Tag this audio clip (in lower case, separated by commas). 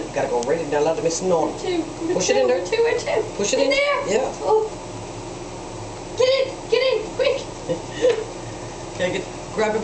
speech